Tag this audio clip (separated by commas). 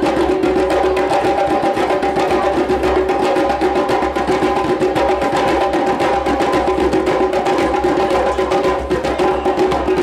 playing djembe